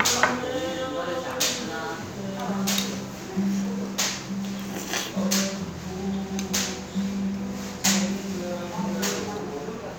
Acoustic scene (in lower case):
restaurant